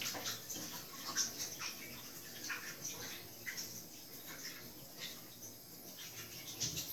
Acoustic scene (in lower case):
restroom